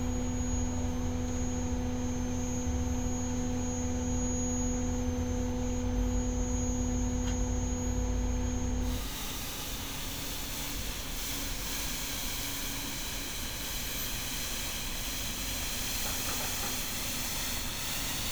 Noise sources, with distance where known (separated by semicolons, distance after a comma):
unidentified powered saw